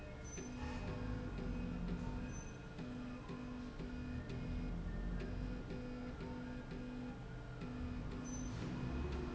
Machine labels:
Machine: slide rail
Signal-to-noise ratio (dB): 0 dB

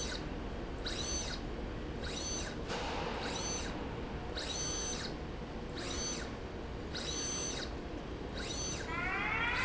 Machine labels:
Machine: slide rail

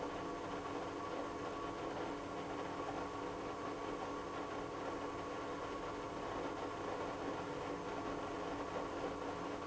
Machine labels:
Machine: pump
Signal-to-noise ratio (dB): 6 dB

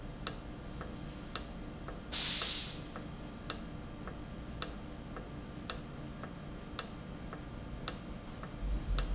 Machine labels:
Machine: valve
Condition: normal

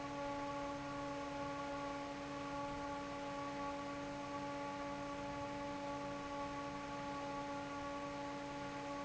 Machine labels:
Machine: fan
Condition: normal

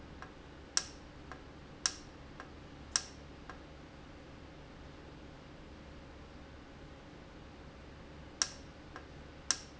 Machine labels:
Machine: valve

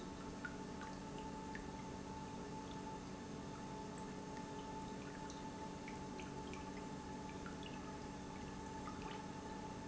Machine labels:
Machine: pump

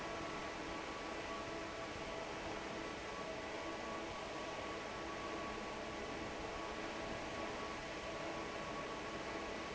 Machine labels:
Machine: fan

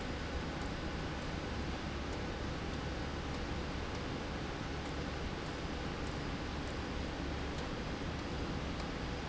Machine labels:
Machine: slide rail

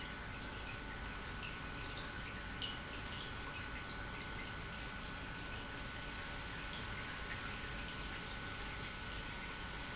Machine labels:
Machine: pump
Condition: normal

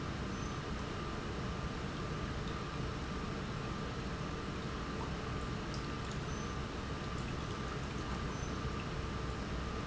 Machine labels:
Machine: pump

